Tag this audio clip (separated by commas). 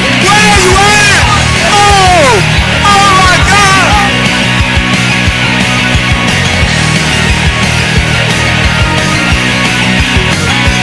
Music